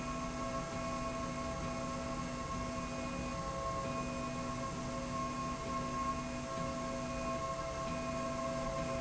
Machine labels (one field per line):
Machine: slide rail